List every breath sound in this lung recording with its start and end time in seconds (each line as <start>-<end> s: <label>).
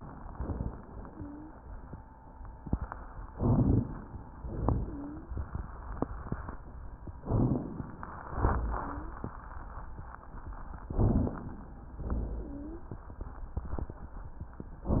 1.02-1.54 s: wheeze
3.32-4.18 s: inhalation
3.32-4.18 s: crackles
4.31-5.16 s: exhalation
4.31-5.16 s: crackles
7.27-8.12 s: inhalation
7.27-8.12 s: crackles
8.35-9.20 s: exhalation
8.75-9.20 s: wheeze
10.85-11.73 s: inhalation
12.09-12.96 s: exhalation
12.45-12.96 s: wheeze